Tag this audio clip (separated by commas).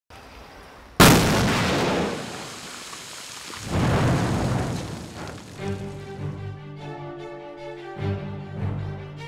Music